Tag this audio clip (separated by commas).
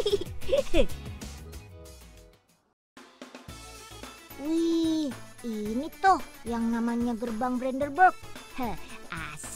Speech, Music